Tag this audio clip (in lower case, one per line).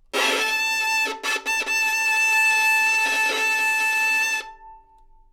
music
musical instrument
bowed string instrument